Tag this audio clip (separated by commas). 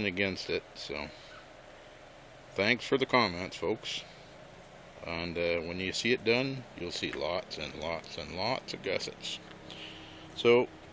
Speech